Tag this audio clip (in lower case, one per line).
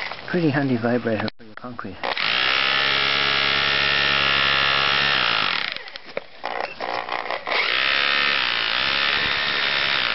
power tool
tools
drill